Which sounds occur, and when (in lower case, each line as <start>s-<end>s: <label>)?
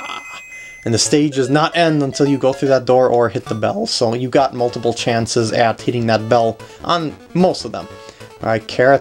0.0s-9.0s: video game sound
0.4s-0.8s: breathing
0.8s-6.6s: man speaking
6.6s-6.8s: breathing
6.8s-7.2s: man speaking
7.3s-7.9s: man speaking
7.9s-8.4s: breathing
8.4s-9.0s: man speaking